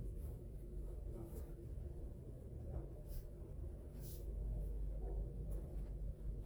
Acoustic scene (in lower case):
elevator